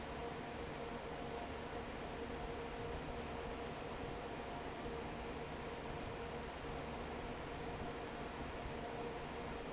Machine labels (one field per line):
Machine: fan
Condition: normal